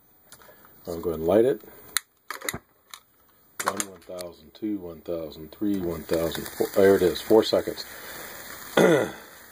A man speaks followed by banging and then sizzling